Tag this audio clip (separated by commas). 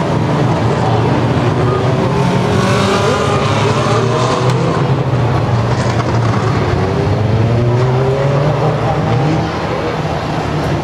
Car, Vehicle